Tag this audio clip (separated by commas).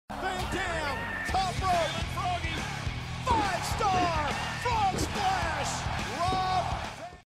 Speech, Music